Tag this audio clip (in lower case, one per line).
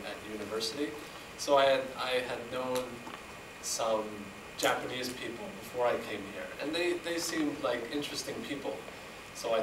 narration
man speaking
speech